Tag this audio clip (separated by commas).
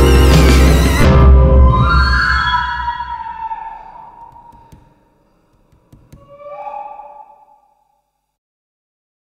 Music